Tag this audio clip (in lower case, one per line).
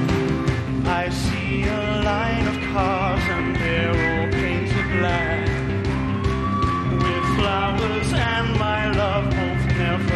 rock and roll
singing
music